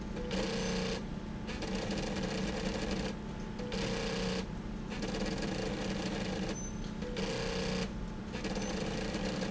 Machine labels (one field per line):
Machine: slide rail